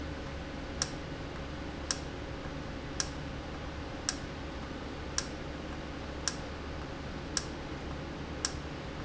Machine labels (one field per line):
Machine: valve